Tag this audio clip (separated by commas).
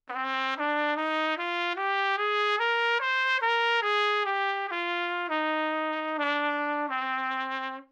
Musical instrument, Trumpet, Music, Brass instrument